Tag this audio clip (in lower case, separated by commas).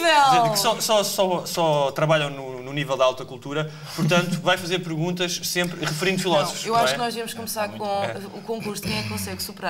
speech